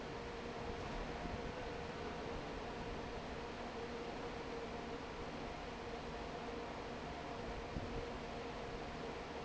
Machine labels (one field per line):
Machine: fan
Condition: normal